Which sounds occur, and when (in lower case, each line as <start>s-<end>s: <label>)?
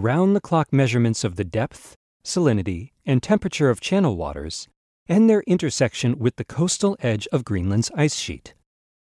0.0s-1.9s: male speech
2.2s-2.9s: male speech
3.0s-4.7s: male speech
5.1s-8.6s: male speech